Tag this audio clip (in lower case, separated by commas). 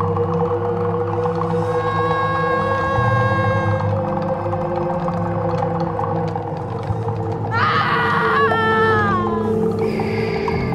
music